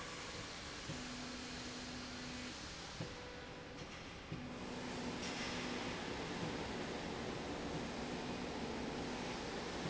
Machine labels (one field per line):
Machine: slide rail